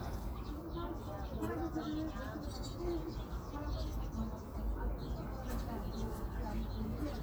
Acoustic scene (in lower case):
park